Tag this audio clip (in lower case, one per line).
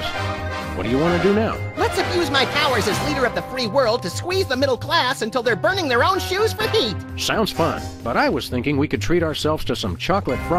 speech synthesizer